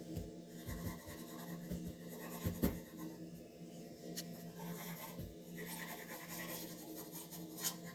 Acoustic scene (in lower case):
restroom